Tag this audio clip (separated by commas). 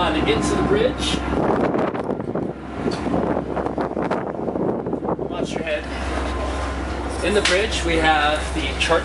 Boat, Wind noise (microphone), Wind